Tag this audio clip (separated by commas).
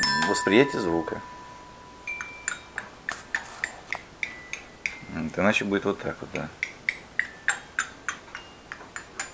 playing glockenspiel